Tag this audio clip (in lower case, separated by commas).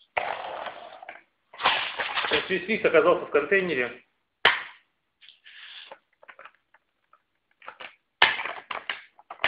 speech